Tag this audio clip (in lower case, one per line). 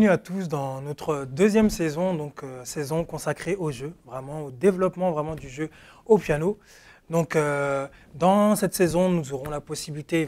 speech